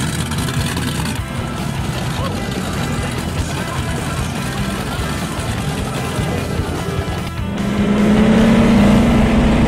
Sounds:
Motorboat, Water vehicle

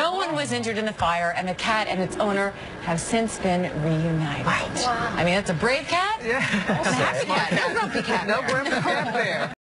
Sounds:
Speech

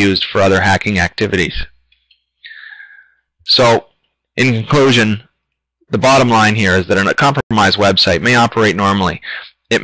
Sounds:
Speech, inside a small room

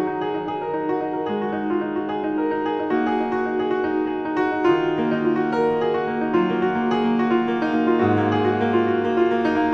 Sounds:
Music

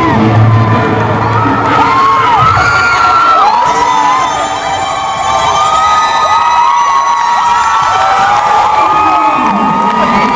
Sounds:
Musical instrument, Violin, Plucked string instrument, Guitar, Strum, Music

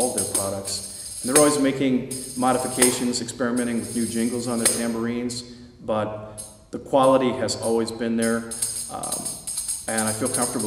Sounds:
Tambourine, Speech, Music

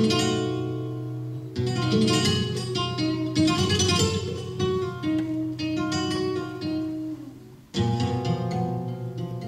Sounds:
Guitar, Music, Musical instrument

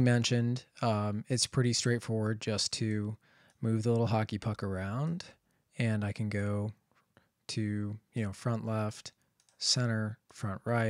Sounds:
Speech

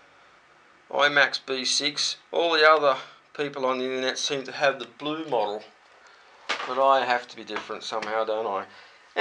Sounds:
Speech

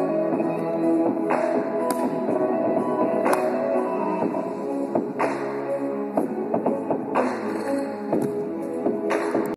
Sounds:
Dance music, Music

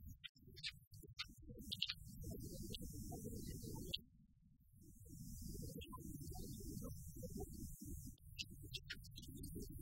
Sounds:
Speech

